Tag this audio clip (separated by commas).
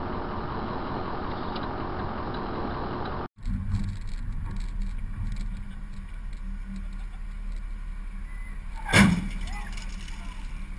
Vehicle, Speech, Car, Motor vehicle (road)